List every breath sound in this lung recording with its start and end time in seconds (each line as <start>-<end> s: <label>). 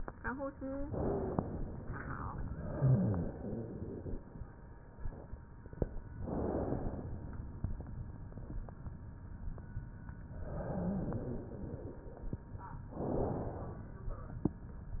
0.82-1.39 s: wheeze
0.82-1.87 s: inhalation
2.71-3.38 s: rhonchi
2.71-4.24 s: exhalation
6.14-7.33 s: inhalation
10.36-12.49 s: exhalation
12.93-13.96 s: inhalation